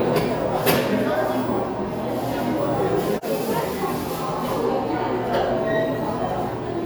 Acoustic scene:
cafe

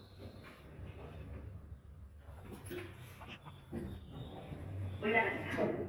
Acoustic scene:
elevator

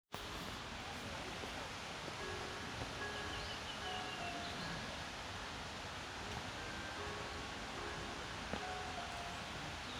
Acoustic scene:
park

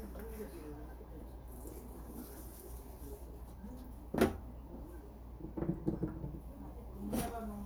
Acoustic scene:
kitchen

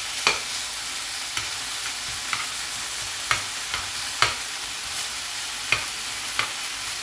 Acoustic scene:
kitchen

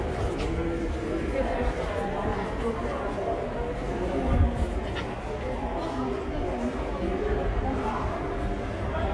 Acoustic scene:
subway station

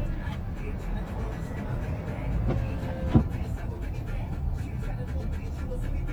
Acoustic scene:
car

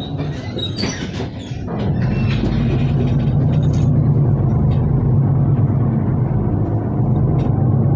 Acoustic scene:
bus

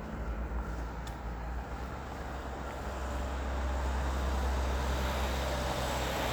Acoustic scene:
street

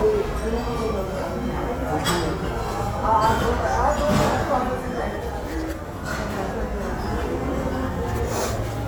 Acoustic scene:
restaurant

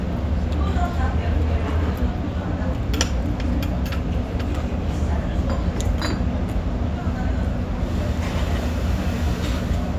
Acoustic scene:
restaurant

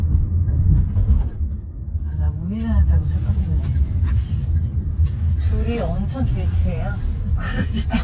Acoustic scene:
car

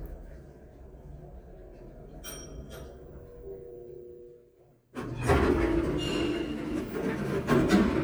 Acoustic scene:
elevator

